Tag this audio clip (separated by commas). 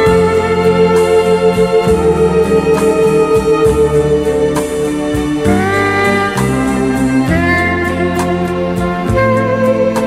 Soundtrack music, Rhythm and blues, Music